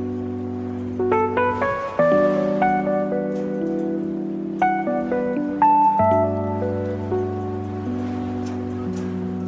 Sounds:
music

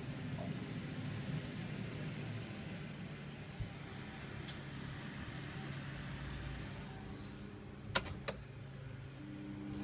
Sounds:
mechanical fan

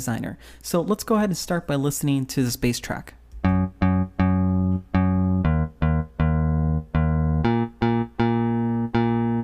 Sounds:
music, speech, bass guitar

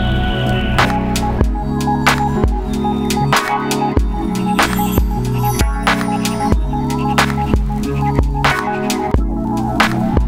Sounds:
music

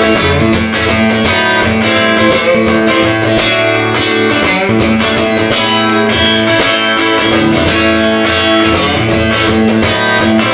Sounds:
musical instrument, strum, acoustic guitar, music, bass guitar, guitar, plucked string instrument

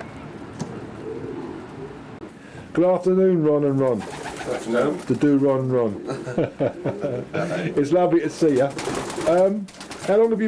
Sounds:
animal, coo, speech, bird

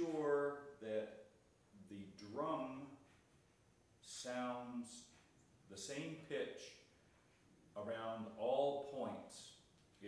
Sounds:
speech

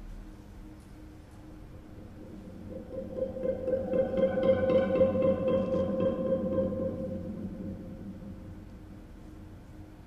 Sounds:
guitar, music, plucked string instrument, musical instrument

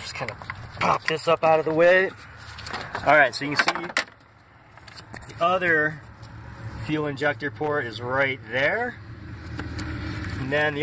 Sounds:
speech

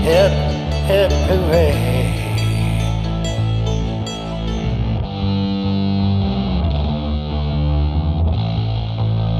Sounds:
music, sound effect

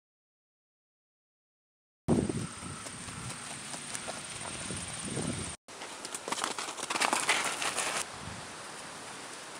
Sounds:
silence, pets, outside, rural or natural

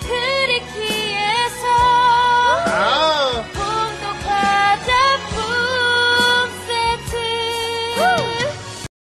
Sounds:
music

